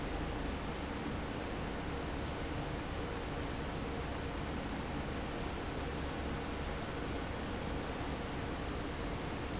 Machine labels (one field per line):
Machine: fan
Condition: normal